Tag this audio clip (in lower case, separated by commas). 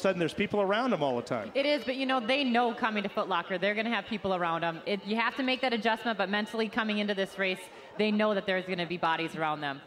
speech